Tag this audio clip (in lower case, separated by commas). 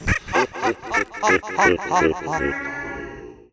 human voice, laughter